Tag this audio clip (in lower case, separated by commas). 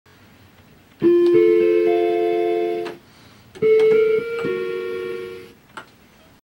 music